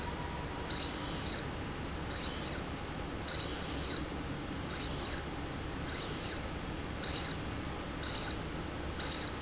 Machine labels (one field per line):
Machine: slide rail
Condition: abnormal